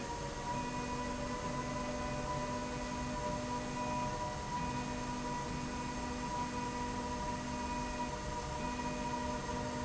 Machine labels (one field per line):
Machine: slide rail